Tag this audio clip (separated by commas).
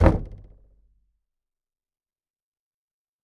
Knock, home sounds, Door